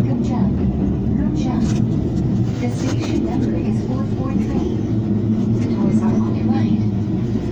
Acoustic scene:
subway train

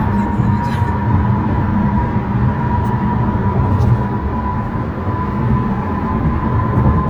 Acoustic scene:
car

